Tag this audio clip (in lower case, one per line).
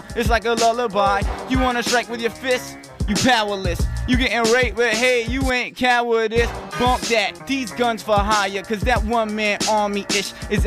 music